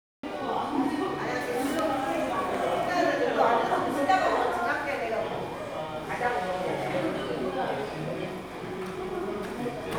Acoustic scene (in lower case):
crowded indoor space